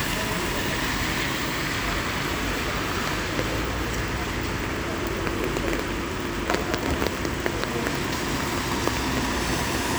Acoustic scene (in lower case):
street